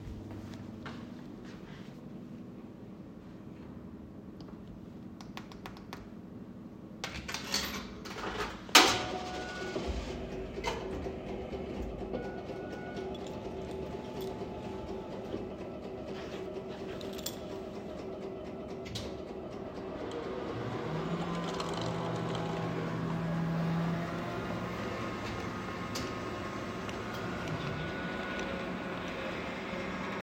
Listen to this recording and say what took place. I use the coffee machine, puts a coin in, put my keys in my pocket, coffee fills the cup.